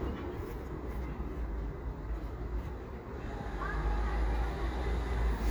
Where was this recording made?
in a residential area